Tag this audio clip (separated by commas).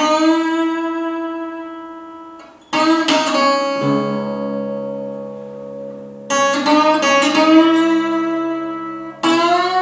Pizzicato